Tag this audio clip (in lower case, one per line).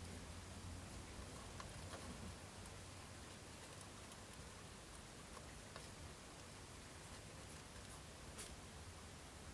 patter